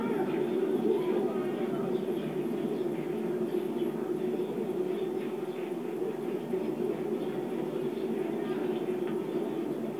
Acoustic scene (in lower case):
park